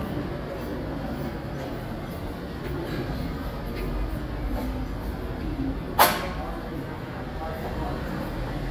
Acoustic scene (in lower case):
subway station